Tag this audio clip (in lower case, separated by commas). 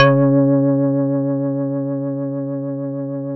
organ, musical instrument, music, keyboard (musical)